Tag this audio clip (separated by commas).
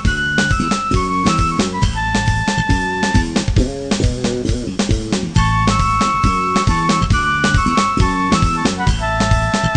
Music, Video game music